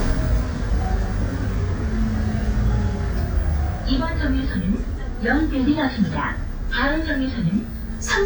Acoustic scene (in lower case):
bus